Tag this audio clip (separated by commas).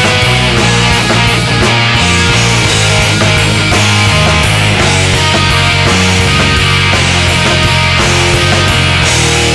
Percussion, Drum, Drum kit, Snare drum, Rimshot